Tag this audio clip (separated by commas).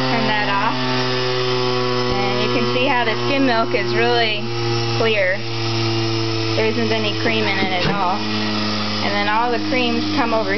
Speech, inside a small room, Blender